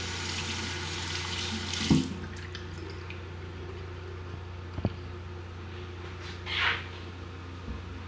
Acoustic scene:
restroom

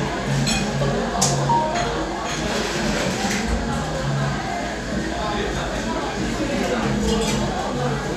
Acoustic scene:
crowded indoor space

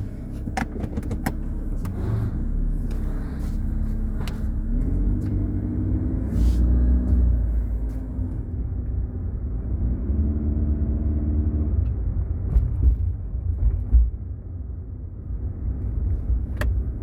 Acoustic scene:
car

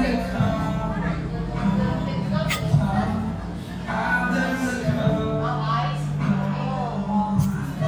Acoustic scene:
cafe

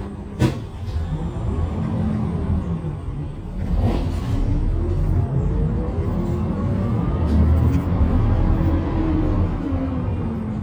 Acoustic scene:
bus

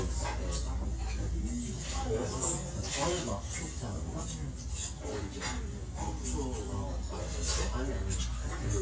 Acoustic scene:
restaurant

